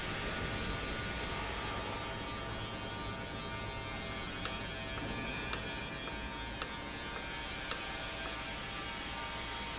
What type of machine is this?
valve